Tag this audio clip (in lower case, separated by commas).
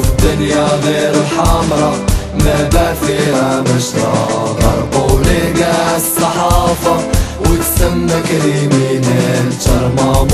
music